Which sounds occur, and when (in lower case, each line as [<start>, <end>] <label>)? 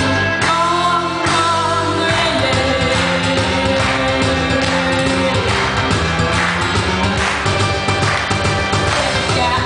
[0.00, 9.65] music
[0.38, 1.08] female singing
[1.22, 5.41] female singing
[8.87, 9.65] female singing